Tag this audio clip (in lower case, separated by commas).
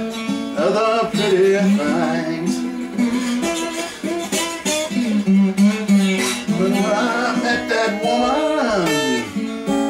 plucked string instrument, musical instrument, music, guitar, strum